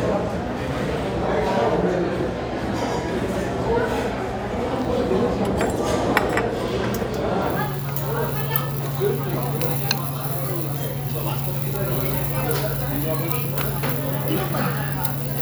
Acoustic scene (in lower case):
restaurant